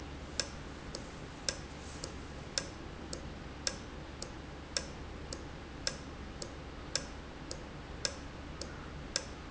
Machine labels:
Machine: valve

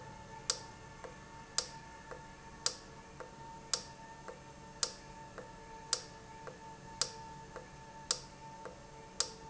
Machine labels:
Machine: valve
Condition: normal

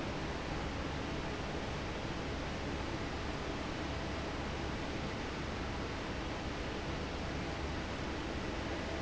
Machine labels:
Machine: fan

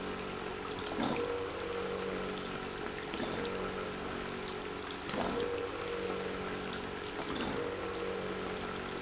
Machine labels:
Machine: pump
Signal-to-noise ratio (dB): 6 dB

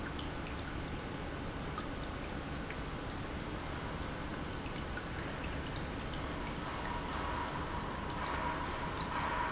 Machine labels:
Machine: pump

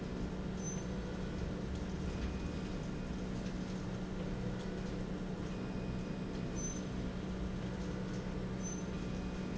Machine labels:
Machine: slide rail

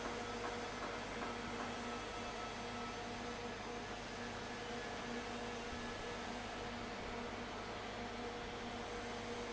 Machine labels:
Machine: fan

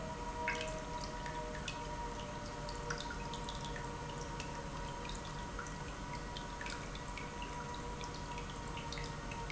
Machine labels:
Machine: pump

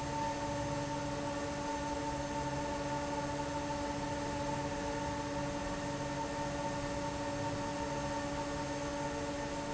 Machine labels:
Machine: fan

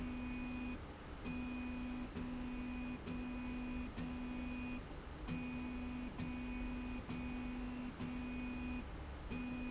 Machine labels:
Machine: slide rail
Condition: normal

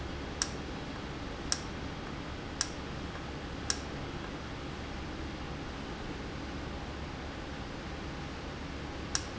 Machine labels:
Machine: valve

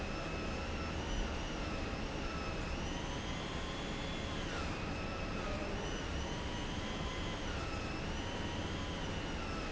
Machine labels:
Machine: pump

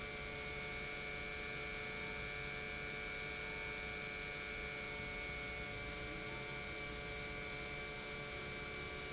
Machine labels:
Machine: pump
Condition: normal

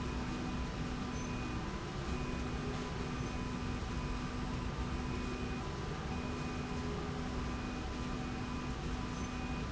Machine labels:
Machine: slide rail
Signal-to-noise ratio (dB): -6 dB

